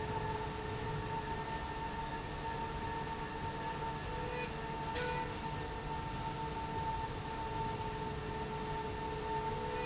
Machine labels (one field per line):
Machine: slide rail